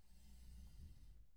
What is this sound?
metal furniture moving